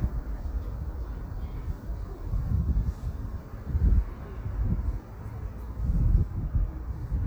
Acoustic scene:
residential area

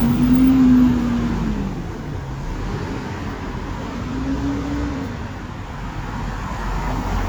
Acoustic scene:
street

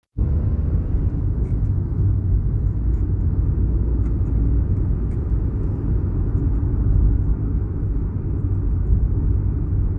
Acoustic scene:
car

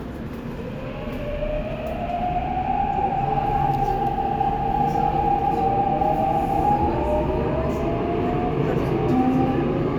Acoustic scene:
subway train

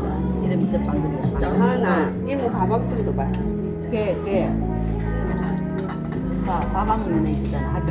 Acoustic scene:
crowded indoor space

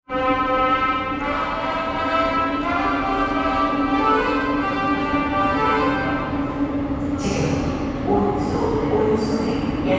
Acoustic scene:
subway station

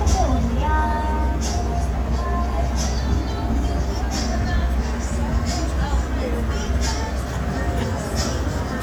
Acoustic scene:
street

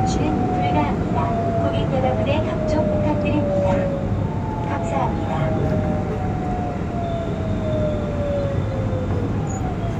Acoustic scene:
subway train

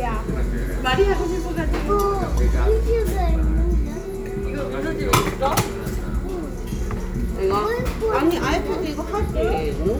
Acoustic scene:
restaurant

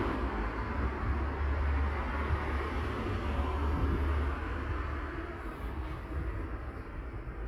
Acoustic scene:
street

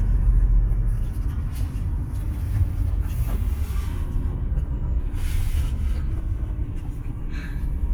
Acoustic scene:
car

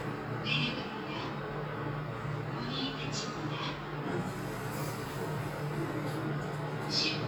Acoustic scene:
elevator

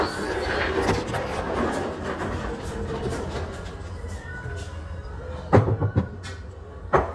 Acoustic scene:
restaurant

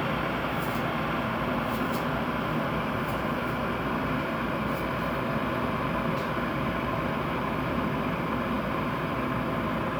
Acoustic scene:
kitchen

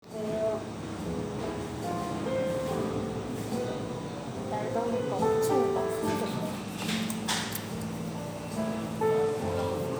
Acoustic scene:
cafe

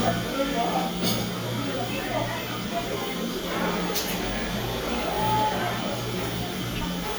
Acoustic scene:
cafe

